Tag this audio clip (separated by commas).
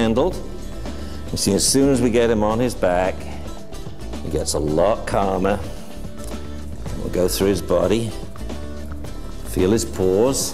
Speech, Music